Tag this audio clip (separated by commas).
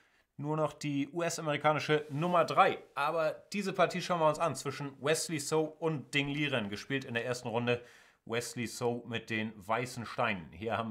Speech